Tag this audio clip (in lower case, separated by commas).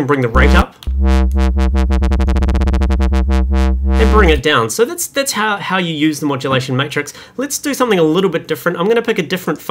musical instrument, synthesizer, speech